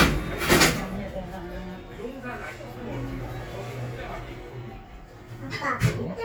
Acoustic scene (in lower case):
elevator